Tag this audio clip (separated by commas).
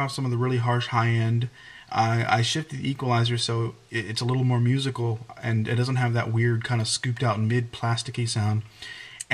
Speech